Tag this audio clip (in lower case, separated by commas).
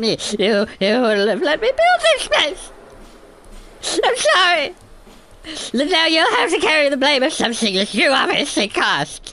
speech